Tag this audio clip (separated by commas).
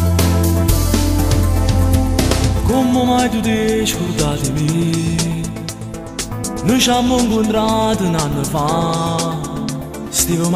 Music